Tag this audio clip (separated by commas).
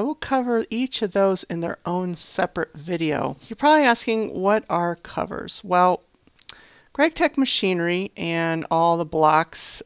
Speech